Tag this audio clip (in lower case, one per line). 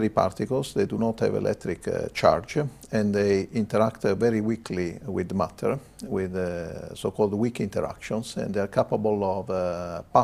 speech